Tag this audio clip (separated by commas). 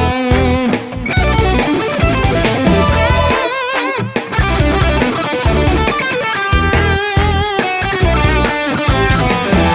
Music, Electronic music, Techno